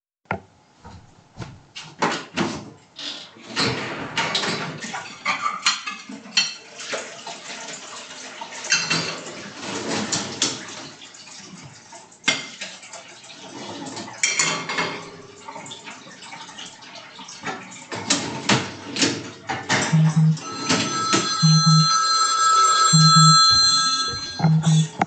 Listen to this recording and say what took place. The water is running so I can rinse the dishes before puting them in the dishwasher. While doing this my phone starts to ring.